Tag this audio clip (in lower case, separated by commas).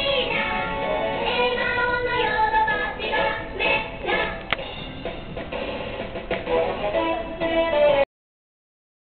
music